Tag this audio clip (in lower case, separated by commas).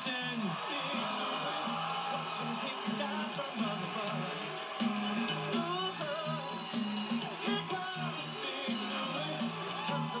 speech, music